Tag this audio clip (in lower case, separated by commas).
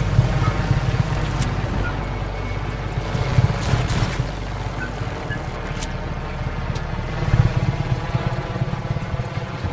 vehicle, music